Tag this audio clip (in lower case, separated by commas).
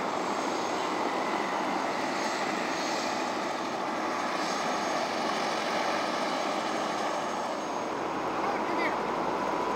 vehicle, speech, motor vehicle (road), helicopter